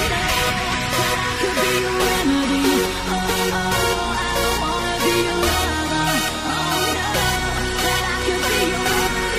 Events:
[0.01, 9.35] music
[0.18, 0.52] female singing
[0.79, 9.35] female singing

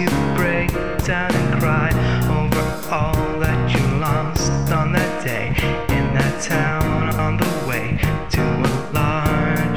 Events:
[0.00, 0.72] male singing
[0.00, 9.75] music
[1.03, 1.96] male singing
[1.92, 2.29] breathing
[2.27, 2.75] male singing
[2.93, 4.58] male singing
[4.68, 5.54] male singing
[5.56, 5.88] breathing
[5.90, 7.96] male singing
[7.97, 8.25] breathing
[8.29, 9.75] male singing

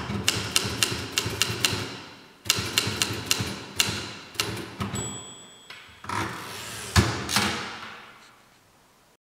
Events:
[0.00, 0.99] typewriter
[0.00, 9.15] background noise
[1.15, 1.92] typewriter
[2.40, 3.54] typewriter
[3.75, 4.11] typewriter
[4.32, 5.16] typewriter
[4.92, 6.06] ding
[5.64, 5.79] tick
[5.99, 8.15] typewriter
[8.15, 8.61] surface contact

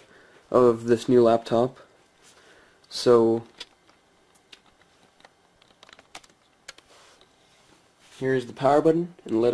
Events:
[0.00, 0.44] breathing
[0.00, 9.53] mechanisms
[0.28, 0.36] generic impact sounds
[0.50, 1.81] male speech
[0.80, 0.90] generic impact sounds
[2.16, 2.74] breathing
[2.18, 2.39] surface contact
[2.78, 2.85] generic impact sounds
[2.87, 3.38] male speech
[3.43, 3.68] generic impact sounds
[3.83, 3.92] generic impact sounds
[4.30, 4.37] generic impact sounds
[4.47, 4.78] computer keyboard
[4.76, 5.11] surface contact
[4.94, 5.02] computer keyboard
[5.13, 5.26] computer keyboard
[5.57, 6.03] computer keyboard
[6.13, 6.35] computer keyboard
[6.65, 6.77] computer keyboard
[6.81, 7.15] surface contact
[7.36, 7.78] surface contact
[7.92, 8.91] surface contact
[8.19, 9.04] male speech
[9.13, 9.28] generic impact sounds
[9.20, 9.53] male speech

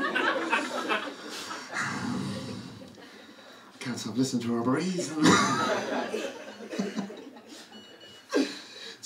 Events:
[0.00, 1.64] crowd
[0.00, 1.69] laughter
[1.06, 1.70] breathing
[1.70, 2.73] human sounds
[2.91, 3.83] breathing
[3.74, 5.08] male speech
[5.08, 7.70] crowd
[5.21, 5.65] cough
[5.37, 7.32] laughter
[6.28, 6.96] ringtone
[7.68, 8.27] ringtone
[8.29, 8.97] breathing

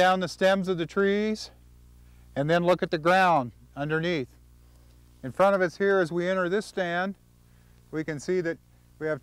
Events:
[0.00, 1.48] male speech
[0.00, 9.22] wind
[1.37, 1.59] breathing
[2.05, 2.29] breathing
[2.34, 3.51] male speech
[3.69, 4.21] male speech
[4.29, 4.36] tick
[4.59, 4.96] breathing
[4.87, 4.94] tick
[5.22, 7.16] male speech
[7.11, 7.16] tick
[7.39, 7.71] breathing
[7.76, 7.82] tick
[7.89, 8.59] male speech
[8.66, 8.89] breathing

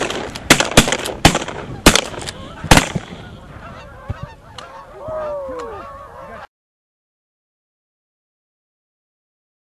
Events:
[0.00, 0.35] gunshot
[0.00, 6.43] wind
[0.12, 0.27] duck
[0.31, 0.38] tick
[0.48, 1.12] gunshot
[1.23, 1.66] gunshot
[1.68, 1.79] duck
[1.84, 2.29] gunshot
[2.23, 2.31] tick
[2.33, 2.62] duck
[2.70, 3.16] gunshot
[3.01, 6.44] duck
[4.02, 4.23] generic impact sounds
[4.53, 4.61] tick
[5.01, 5.12] generic impact sounds
[5.12, 5.87] man speaking
[5.55, 5.62] tick
[6.07, 6.44] man speaking

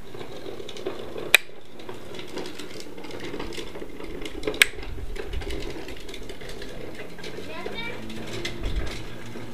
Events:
[0.00, 9.53] background noise
[0.00, 9.53] generic impact sounds
[7.36, 8.01] child speech

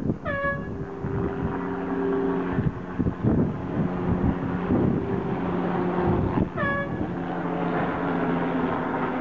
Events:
[0.00, 0.81] wind noise (microphone)
[0.00, 9.20] motorboat
[0.00, 9.20] wind
[0.22, 0.70] air horn
[2.42, 2.73] wind noise (microphone)
[2.92, 3.47] wind noise (microphone)
[3.74, 5.05] wind noise (microphone)
[6.21, 6.60] wind noise (microphone)
[6.50, 6.98] air horn

